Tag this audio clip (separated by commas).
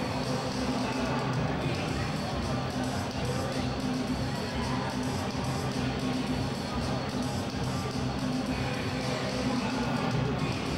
inside a large room or hall, Music